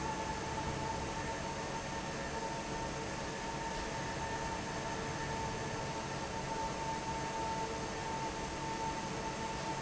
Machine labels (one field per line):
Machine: fan